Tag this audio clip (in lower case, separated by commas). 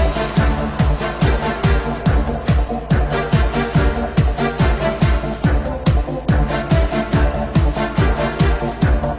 electronic music, music, techno, musical instrument